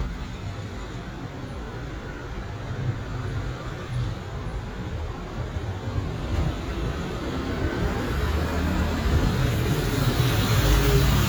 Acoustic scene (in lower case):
street